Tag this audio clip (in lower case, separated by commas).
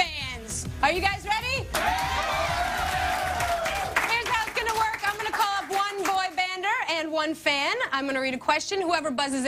speech